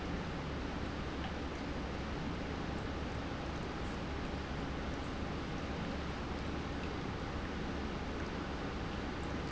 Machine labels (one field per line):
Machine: pump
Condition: normal